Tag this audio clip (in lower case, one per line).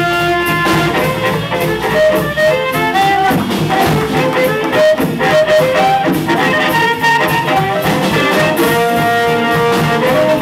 harmonica
wind instrument